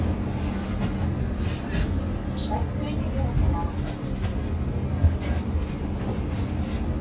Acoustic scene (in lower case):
bus